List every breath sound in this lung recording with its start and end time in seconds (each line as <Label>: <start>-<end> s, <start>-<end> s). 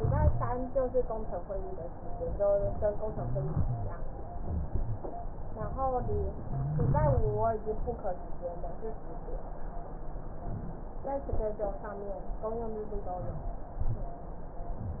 Inhalation: 3.11-3.61 s, 6.54-7.21 s
Exhalation: 3.64-4.00 s, 7.25-7.68 s
Rhonchi: 0.00-0.51 s, 3.11-3.61 s, 3.64-4.00 s, 6.54-7.21 s, 7.25-7.68 s